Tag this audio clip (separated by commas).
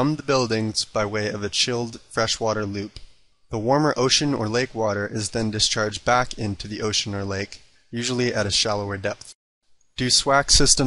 Speech